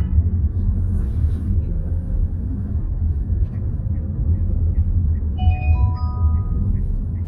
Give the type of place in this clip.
car